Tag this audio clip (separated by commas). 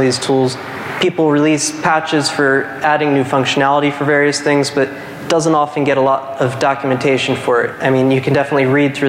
Speech